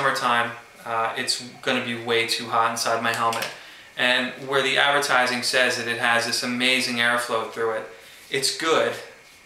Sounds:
speech

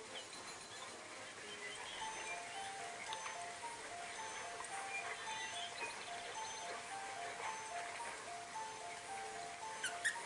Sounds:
yip, music

